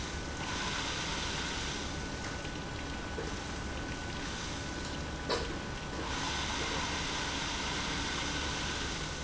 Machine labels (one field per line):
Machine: pump